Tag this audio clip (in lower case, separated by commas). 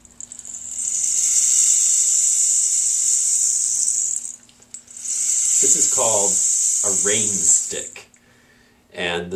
speech